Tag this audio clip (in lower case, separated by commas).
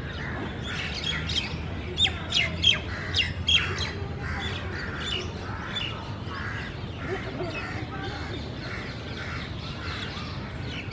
tweeting, bird vocalization, tweet, bird